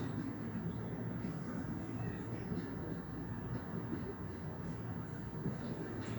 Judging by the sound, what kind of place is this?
park